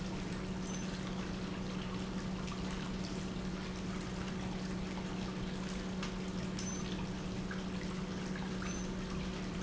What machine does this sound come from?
pump